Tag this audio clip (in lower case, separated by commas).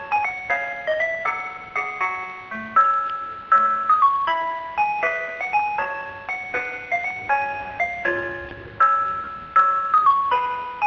music